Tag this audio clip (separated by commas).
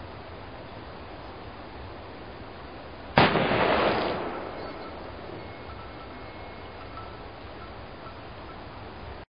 Waterfall